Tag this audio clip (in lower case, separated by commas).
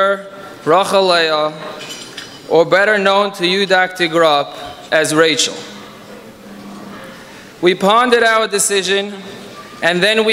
speech